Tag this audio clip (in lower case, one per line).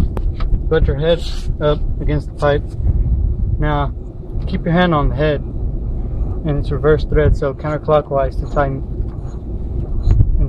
speech
tools